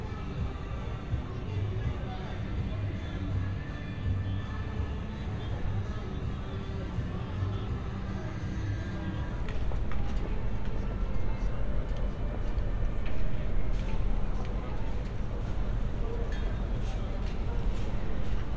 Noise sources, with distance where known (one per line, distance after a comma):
music from an unclear source
person or small group talking